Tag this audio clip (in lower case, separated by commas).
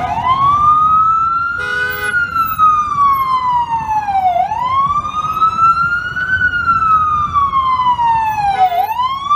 ambulance siren